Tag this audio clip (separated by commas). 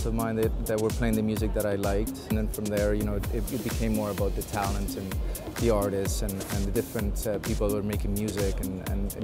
Speech, Music